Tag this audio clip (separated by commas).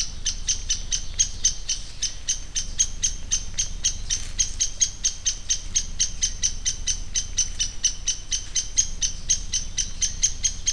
Animal